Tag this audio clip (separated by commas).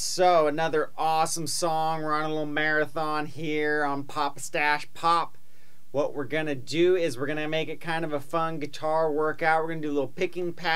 Speech